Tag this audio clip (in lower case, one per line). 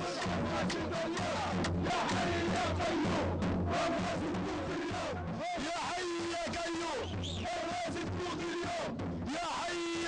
music